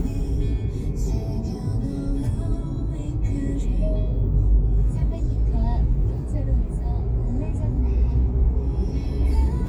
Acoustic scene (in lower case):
car